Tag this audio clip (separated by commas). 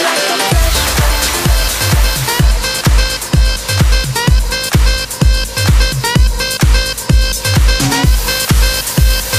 Music, Electronic dance music